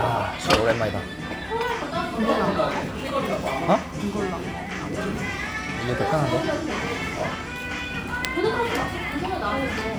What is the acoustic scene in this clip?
restaurant